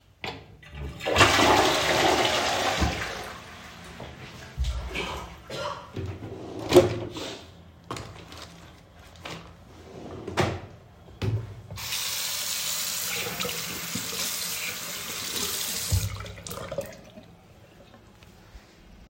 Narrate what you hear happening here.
I flushed the toilet, walked to the drawer, while my roommate coughed in another room, turned on the water to wash my hands and then turned it off.